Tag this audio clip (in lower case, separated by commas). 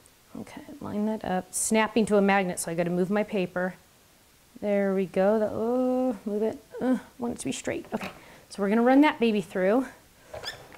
speech